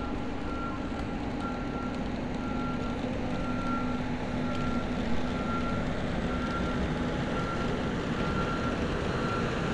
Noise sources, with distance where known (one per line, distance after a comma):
engine of unclear size
reverse beeper, far